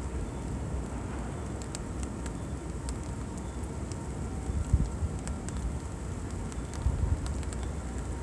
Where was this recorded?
in a residential area